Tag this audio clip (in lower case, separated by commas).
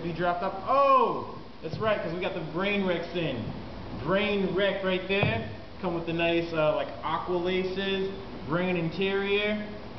speech